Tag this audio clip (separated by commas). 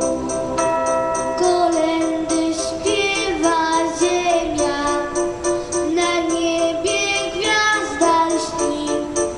Jingle bell